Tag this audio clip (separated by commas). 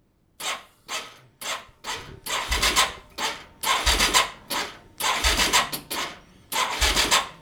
Engine